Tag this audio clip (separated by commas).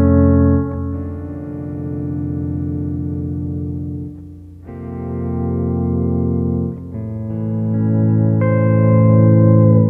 Music